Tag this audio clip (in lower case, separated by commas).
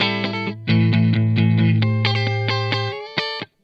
guitar, electric guitar, music, plucked string instrument, musical instrument